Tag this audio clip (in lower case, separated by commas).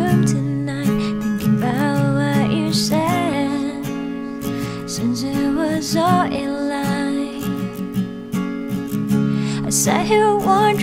sad music, music